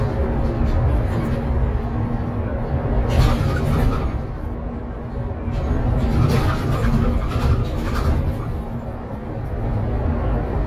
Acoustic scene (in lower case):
bus